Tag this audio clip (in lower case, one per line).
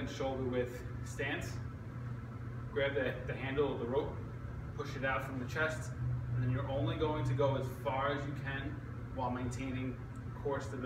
speech